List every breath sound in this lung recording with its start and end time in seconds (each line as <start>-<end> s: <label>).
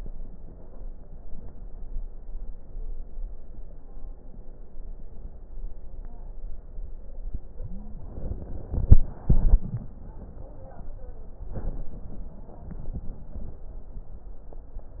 7.56-8.14 s: wheeze